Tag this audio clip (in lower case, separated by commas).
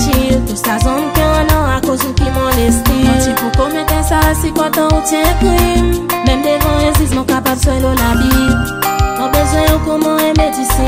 music of africa, music